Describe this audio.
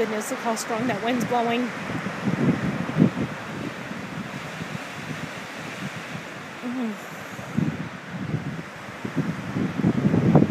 She is speaking, wind is hitting microphone